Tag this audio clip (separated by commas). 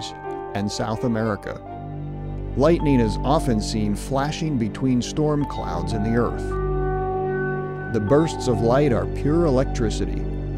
Speech, Music